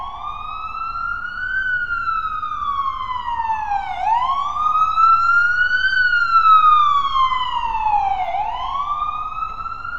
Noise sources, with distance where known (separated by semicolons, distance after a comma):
siren, near